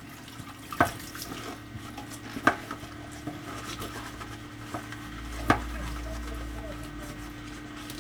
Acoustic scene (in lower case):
kitchen